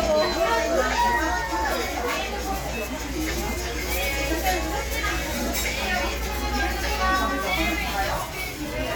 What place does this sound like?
crowded indoor space